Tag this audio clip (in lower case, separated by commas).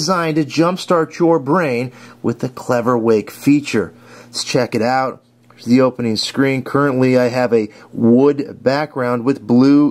speech